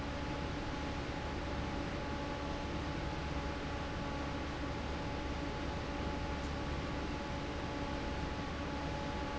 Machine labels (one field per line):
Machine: fan